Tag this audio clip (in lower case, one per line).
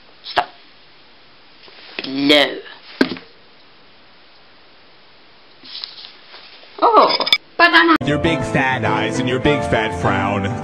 dishes, pots and pans